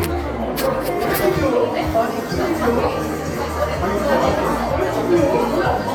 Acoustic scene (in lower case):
crowded indoor space